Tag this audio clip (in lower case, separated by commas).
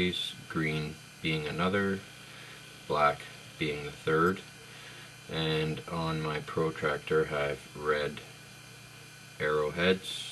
speech